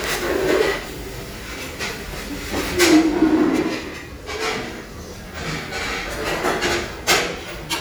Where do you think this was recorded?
in a restaurant